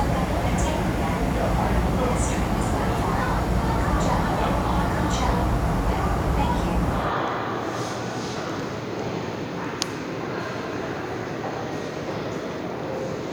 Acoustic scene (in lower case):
subway station